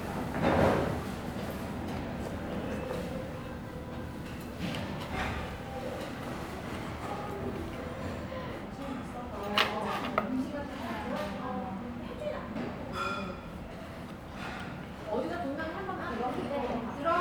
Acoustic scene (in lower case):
restaurant